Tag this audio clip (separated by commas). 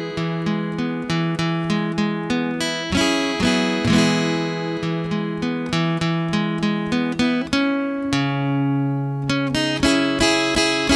Music